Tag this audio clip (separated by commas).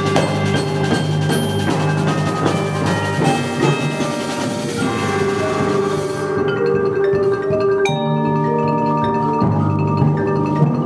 xylophone, Mallet percussion, Glockenspiel